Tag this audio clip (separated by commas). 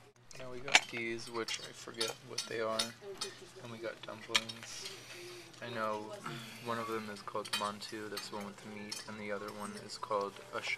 inside a small room, Speech